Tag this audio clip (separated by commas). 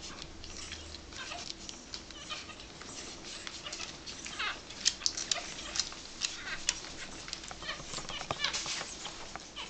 Dog, Animal